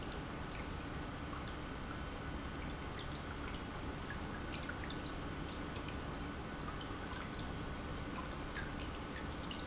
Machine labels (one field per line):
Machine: pump